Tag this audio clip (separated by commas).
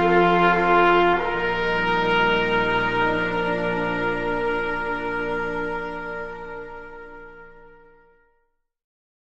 Brass instrument, French horn